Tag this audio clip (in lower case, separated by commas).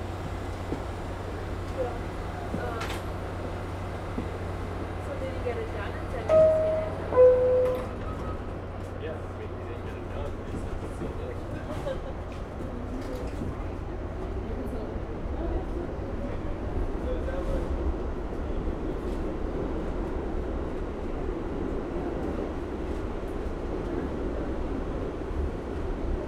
vehicle, underground, rail transport